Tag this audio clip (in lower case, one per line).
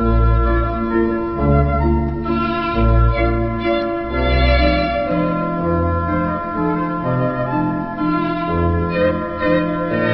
tender music
music